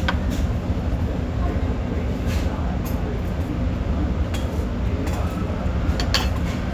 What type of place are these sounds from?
restaurant